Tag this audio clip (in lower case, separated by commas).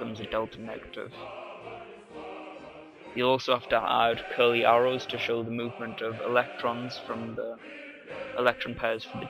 speech